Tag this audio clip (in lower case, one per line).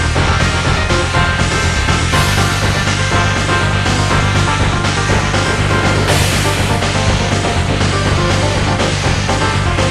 music